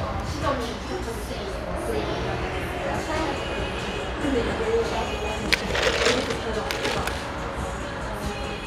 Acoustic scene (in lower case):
cafe